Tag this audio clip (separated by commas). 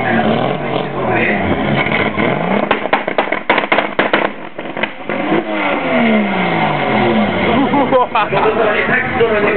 Car, Engine, Vehicle, Speech, Accelerating, Medium engine (mid frequency)